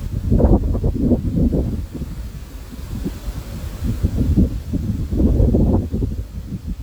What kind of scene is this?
park